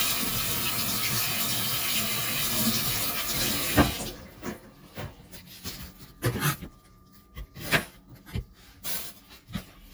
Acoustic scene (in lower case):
kitchen